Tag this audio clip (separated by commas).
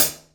Hi-hat, Percussion, Musical instrument, Music, Cymbal